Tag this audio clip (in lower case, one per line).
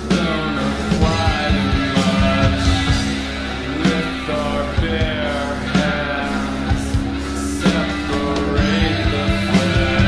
punk rock
music